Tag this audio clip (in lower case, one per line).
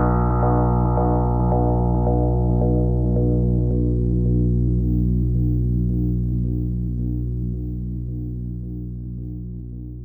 ambient music